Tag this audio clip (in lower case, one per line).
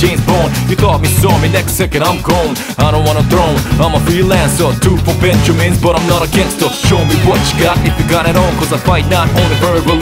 music